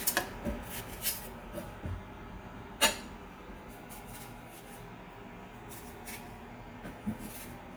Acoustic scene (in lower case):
kitchen